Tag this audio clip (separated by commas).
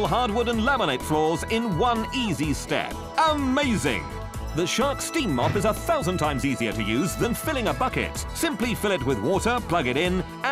Music, Speech